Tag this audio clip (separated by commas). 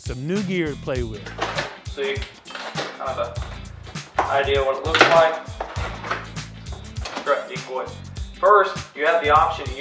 Music, Speech